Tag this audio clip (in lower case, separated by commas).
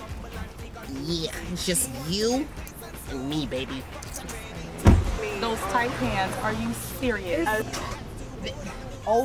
car passing by, vehicle, speech, music